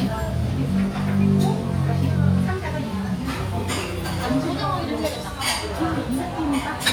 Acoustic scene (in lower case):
restaurant